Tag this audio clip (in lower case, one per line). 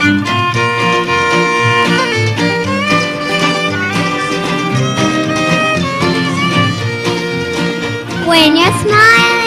child singing
music